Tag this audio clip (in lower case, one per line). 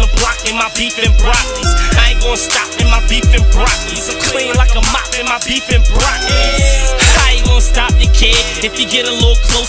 pop music
music